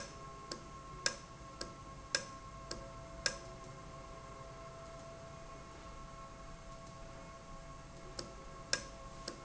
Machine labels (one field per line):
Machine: valve